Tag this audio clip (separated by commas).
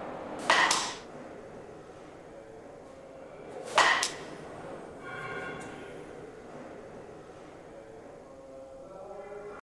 Speech